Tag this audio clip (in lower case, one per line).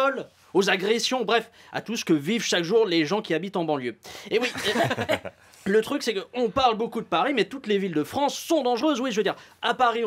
speech